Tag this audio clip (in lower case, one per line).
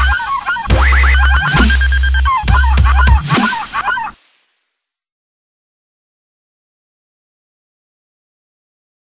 dubstep
music